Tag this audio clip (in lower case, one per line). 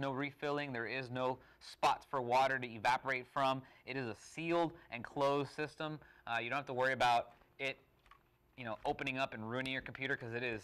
speech